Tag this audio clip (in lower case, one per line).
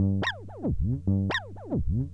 music
plucked string instrument
guitar
musical instrument